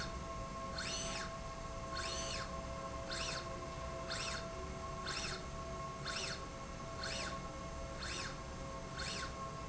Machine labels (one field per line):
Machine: slide rail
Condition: normal